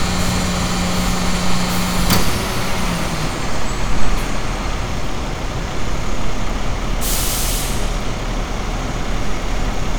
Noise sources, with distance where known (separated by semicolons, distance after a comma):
large-sounding engine, near